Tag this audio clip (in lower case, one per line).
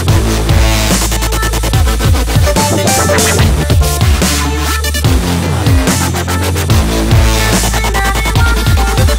dubstep